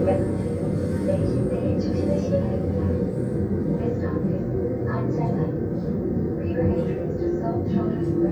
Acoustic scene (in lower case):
subway train